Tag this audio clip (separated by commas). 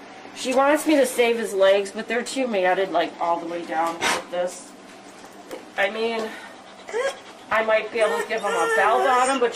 Whimper (dog), Animal, Domestic animals, Dog, Speech